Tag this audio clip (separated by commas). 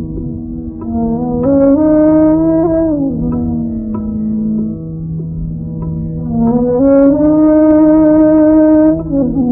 Flute, woodwind instrument